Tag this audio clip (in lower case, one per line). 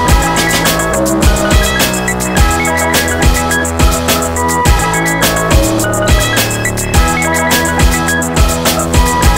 music